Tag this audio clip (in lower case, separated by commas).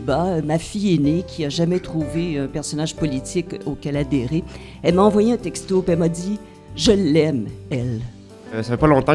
music, speech